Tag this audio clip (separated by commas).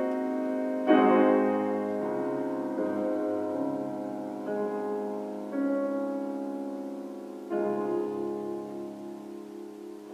Musical instrument, Music